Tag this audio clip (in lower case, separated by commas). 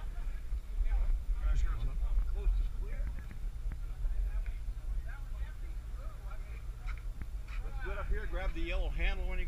speech